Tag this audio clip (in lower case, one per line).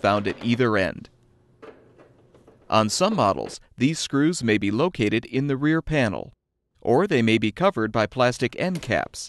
speech